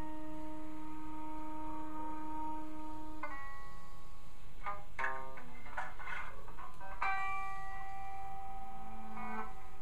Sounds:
Plucked string instrument, Music, Musical instrument, Electric guitar, Bass guitar, Guitar

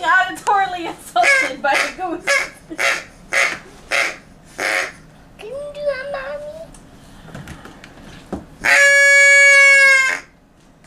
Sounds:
Speech

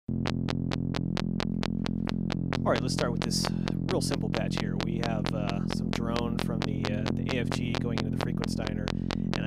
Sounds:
Speech

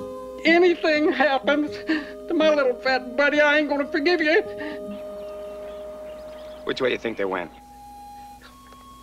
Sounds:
Speech, Music

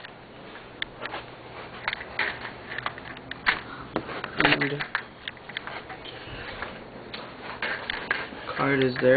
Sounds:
inside a small room, Speech

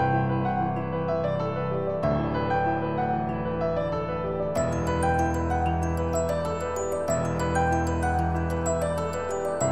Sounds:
Music

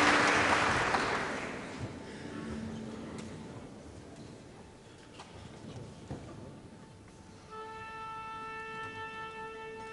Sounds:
fiddle, Musical instrument, Orchestra, Music

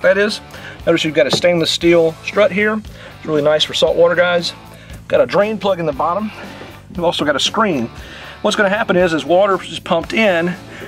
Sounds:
Speech, Music

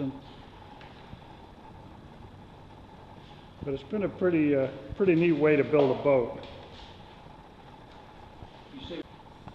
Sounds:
Speech

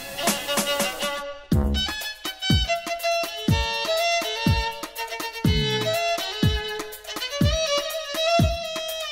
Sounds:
Music

